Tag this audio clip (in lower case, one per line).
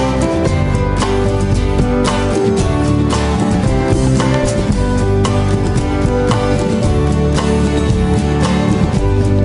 music